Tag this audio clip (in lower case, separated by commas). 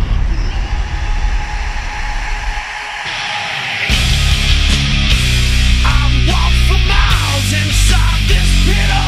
music